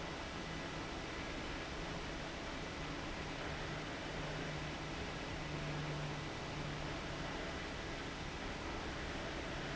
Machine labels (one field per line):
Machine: fan